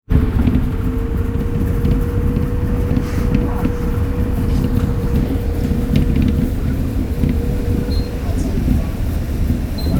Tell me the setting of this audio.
bus